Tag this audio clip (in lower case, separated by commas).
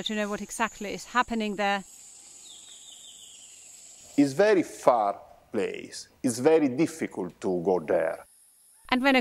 speech